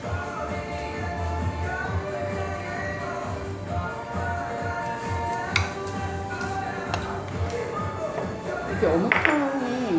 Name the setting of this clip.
restaurant